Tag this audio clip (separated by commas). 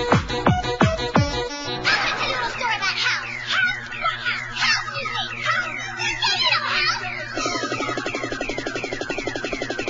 Music